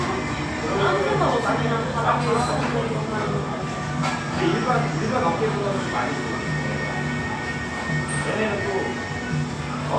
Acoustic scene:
cafe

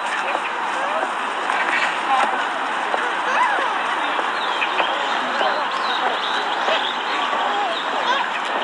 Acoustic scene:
park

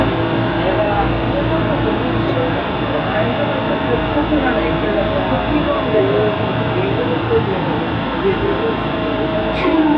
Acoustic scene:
subway train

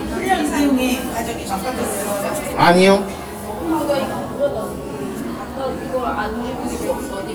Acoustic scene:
cafe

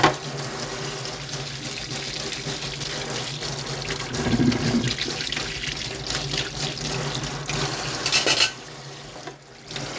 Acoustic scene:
kitchen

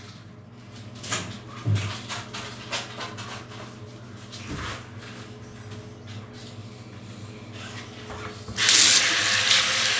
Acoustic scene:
restroom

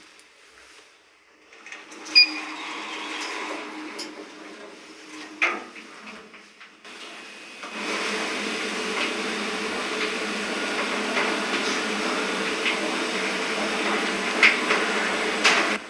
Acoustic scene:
elevator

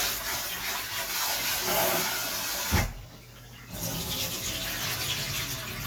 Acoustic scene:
kitchen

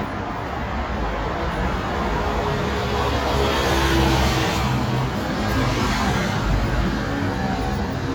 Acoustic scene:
street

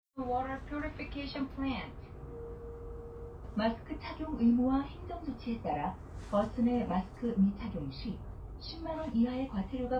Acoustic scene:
bus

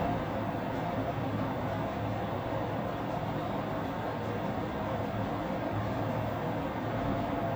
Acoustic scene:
elevator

